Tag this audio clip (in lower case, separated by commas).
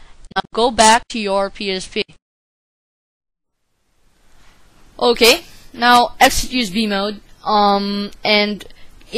speech